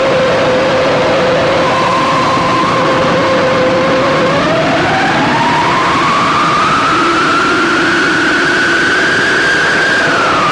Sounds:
sound effect

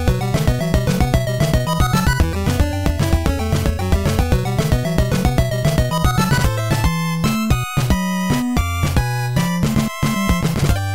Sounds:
music
video game music

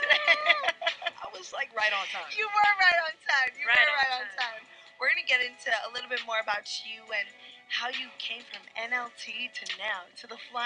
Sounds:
radio
speech
music

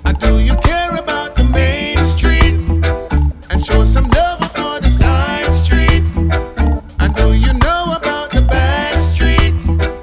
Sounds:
music

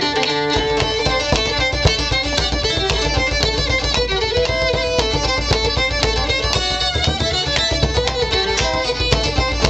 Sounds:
musical instrument
music

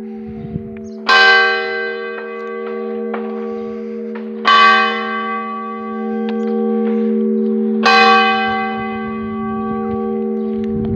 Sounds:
church bell ringing

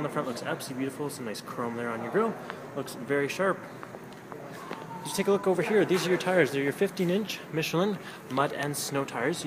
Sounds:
speech

